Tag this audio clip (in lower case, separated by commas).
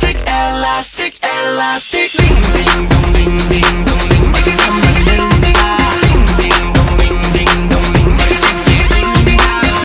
music